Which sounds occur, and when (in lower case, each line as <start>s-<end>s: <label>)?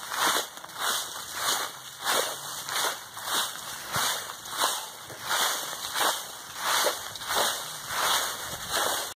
0.0s-9.1s: background noise
0.1s-0.4s: rustle
0.6s-0.7s: tick
0.7s-1.0s: rustle
1.1s-1.2s: tick
1.4s-1.7s: rustle
2.0s-2.3s: rustle
2.6s-2.7s: tick
2.7s-2.9s: rustle
3.2s-3.5s: rustle
3.9s-4.2s: rustle
4.6s-4.8s: rustle
5.3s-5.6s: rustle
5.7s-5.8s: tick
5.9s-6.2s: rustle
6.6s-6.9s: rustle
7.1s-7.2s: tick
7.3s-7.6s: rustle
7.9s-8.2s: rustle
8.7s-9.0s: rustle